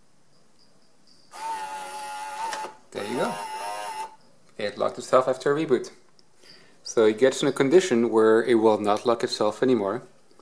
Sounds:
Speech

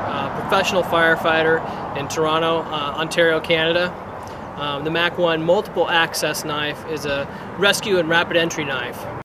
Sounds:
Speech

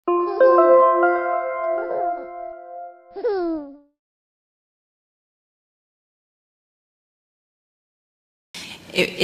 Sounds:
Music, Speech

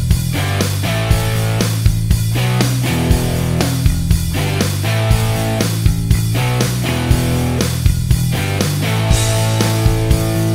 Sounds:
Musical instrument, Music, Plucked string instrument, Electric guitar, Guitar, Strum

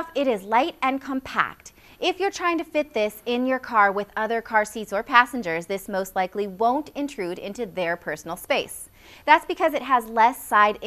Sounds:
Speech

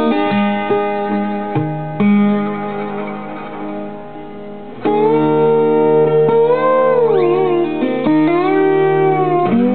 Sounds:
Guitar, Music, Bowed string instrument, Plucked string instrument, Musical instrument, Classical music

